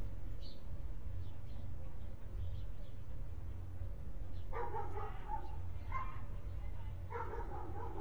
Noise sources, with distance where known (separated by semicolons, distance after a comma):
dog barking or whining, far